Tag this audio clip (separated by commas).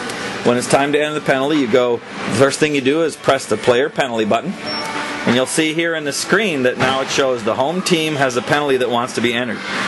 Music, Speech